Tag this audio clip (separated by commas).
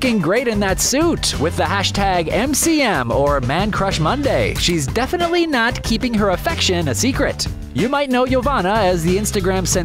Speech, Music